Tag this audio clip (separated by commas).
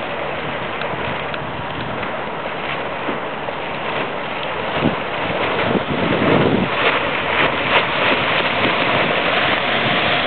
Boat, Vehicle